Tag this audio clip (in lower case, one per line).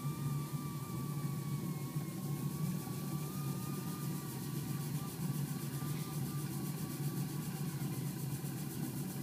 engine